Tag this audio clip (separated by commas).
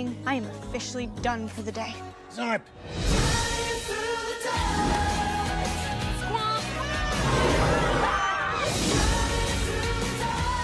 Speech, Music